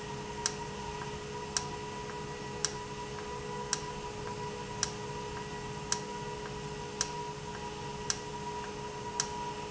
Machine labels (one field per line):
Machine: valve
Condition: normal